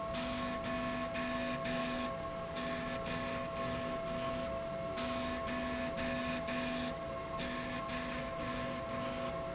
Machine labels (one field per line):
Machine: slide rail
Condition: abnormal